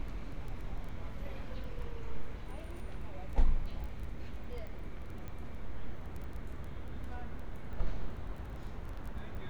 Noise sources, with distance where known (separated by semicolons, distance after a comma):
person or small group talking